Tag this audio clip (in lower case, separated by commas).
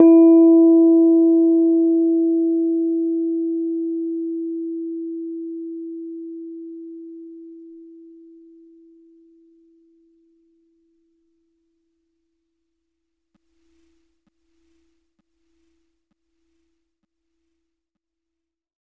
keyboard (musical), piano, music, musical instrument